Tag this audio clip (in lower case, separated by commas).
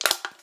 crushing